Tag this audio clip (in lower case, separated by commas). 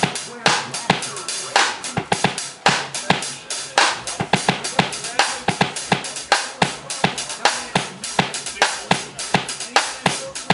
bass drum, music, drum, hi-hat, cymbal, drum kit, musical instrument, percussion, speech, snare drum